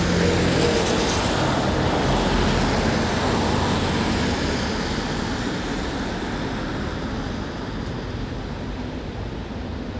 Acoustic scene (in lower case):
street